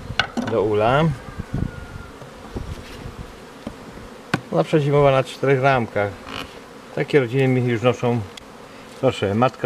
A man is speaking in a foreign language and bees are buzzing in the background